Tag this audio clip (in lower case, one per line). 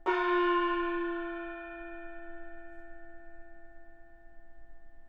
music
musical instrument
percussion
gong